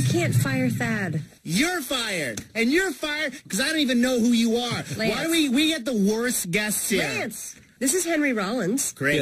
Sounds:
Speech

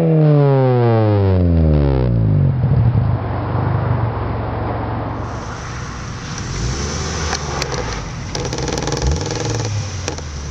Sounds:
Car, Vehicle, revving

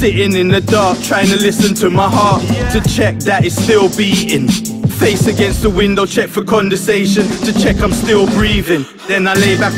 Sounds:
Rapping

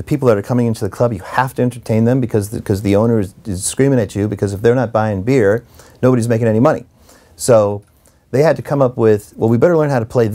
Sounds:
Speech

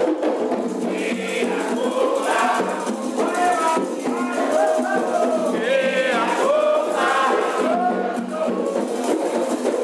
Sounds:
Music

